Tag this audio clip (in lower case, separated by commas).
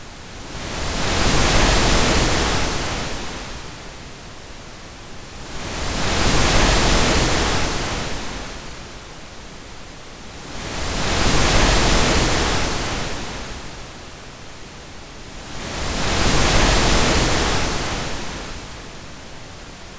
water, waves, ocean